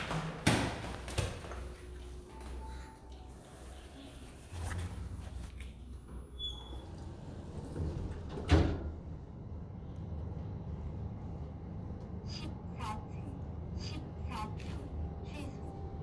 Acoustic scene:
elevator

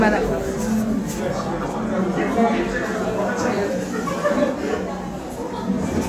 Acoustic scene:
crowded indoor space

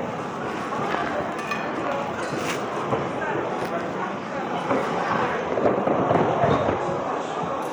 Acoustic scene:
cafe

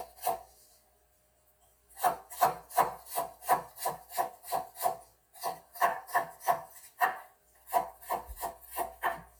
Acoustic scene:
kitchen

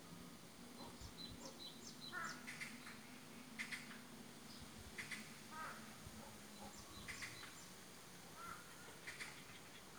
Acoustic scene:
park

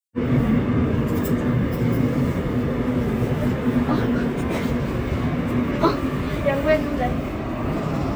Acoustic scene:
subway train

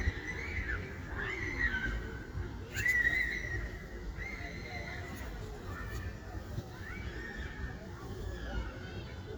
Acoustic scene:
residential area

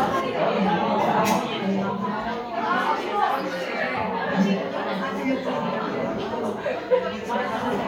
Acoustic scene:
crowded indoor space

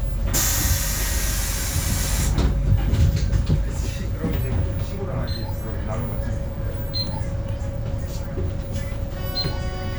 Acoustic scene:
bus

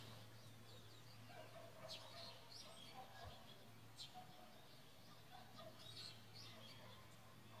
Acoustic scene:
park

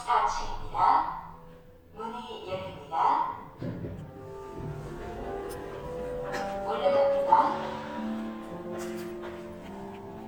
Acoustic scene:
elevator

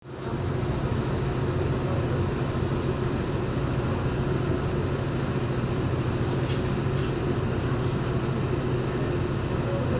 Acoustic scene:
bus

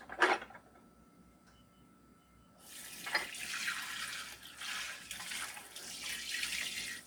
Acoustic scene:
kitchen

